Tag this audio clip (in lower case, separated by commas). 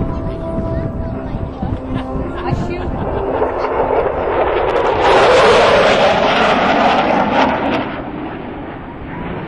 airplane flyby